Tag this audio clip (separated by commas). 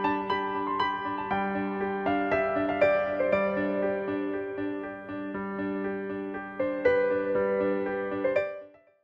Music